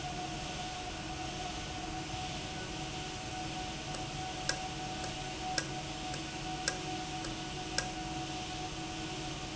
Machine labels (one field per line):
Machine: valve